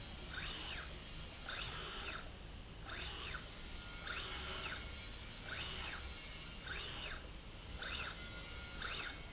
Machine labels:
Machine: slide rail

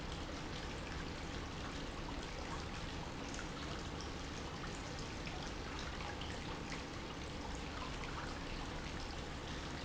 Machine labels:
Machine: pump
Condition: normal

